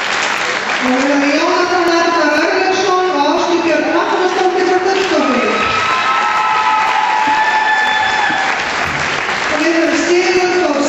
A crowd cheers loudly and a person speaks